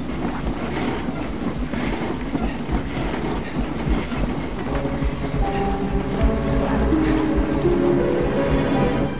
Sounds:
Music

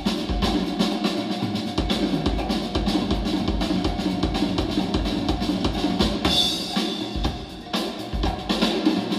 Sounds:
Music

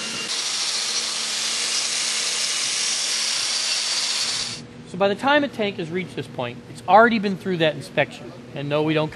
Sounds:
Speech, inside a large room or hall, Tools

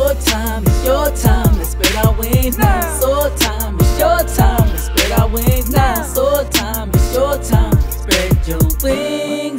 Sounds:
rapping

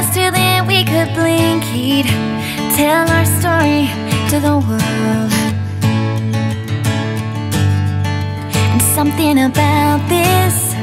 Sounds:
Tender music, Music

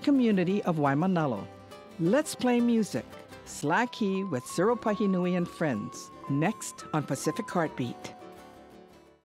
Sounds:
Music, Speech

